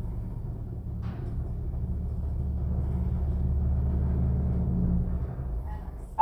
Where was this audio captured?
in an elevator